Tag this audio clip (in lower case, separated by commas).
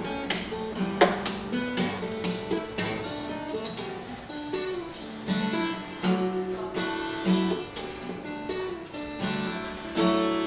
music, plucked string instrument, acoustic guitar, guitar, musical instrument, strum